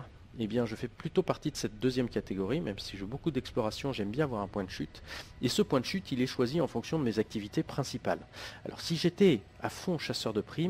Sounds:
speech

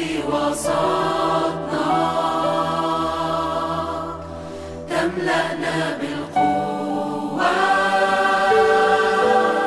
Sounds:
music

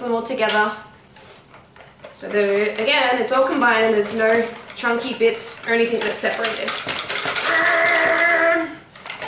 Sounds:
cutlery, dishes, pots and pans, eating with cutlery

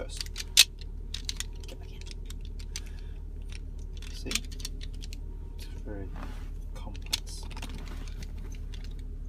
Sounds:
speech

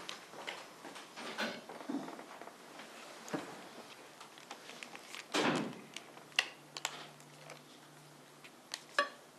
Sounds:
door

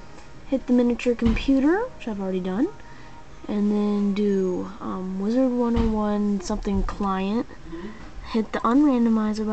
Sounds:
speech, music

